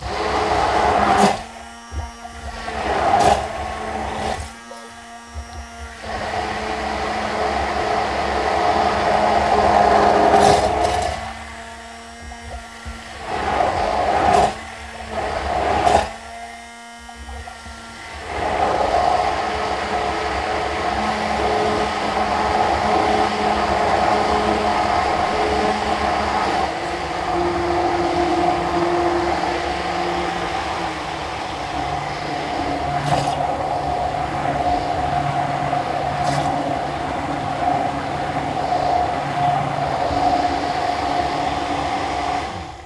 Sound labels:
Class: beater